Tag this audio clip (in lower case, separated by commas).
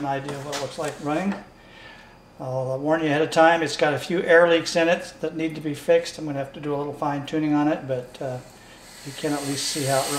speech